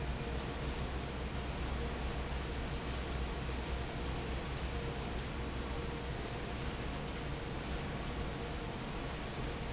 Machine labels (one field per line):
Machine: fan